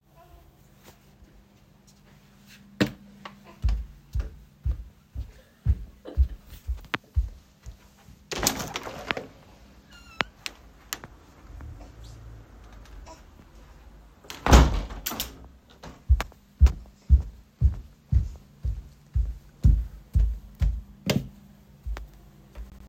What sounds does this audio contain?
footsteps, window, light switch